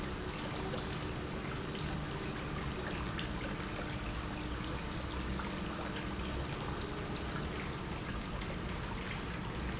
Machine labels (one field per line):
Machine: pump